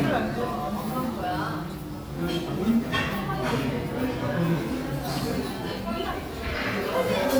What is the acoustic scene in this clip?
crowded indoor space